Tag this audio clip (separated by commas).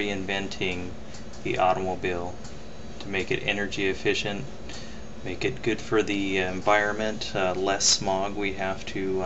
Speech